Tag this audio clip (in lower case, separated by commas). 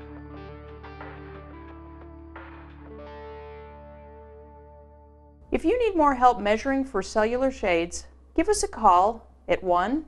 inside a small room, music, speech